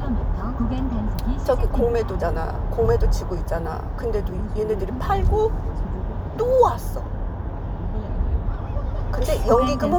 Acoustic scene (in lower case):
car